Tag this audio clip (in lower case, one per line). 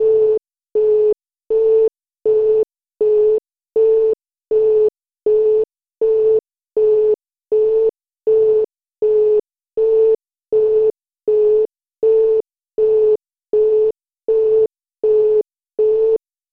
musical instrument
music
alarm
keyboard (musical)